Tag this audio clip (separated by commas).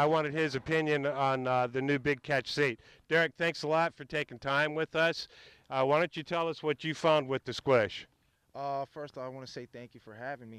Speech